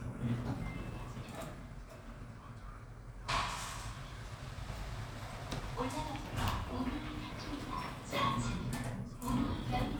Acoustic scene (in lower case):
elevator